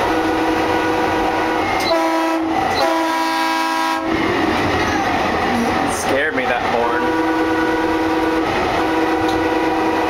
A horn blows and an adult male speaks